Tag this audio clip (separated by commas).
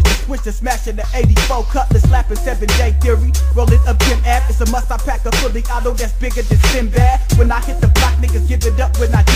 Music